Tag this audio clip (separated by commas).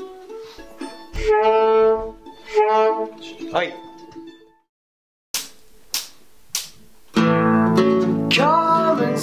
Music, Speech